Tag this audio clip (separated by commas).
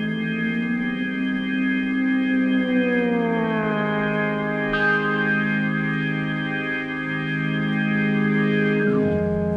Music